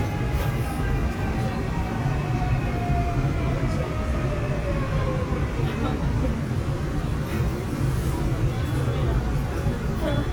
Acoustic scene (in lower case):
subway train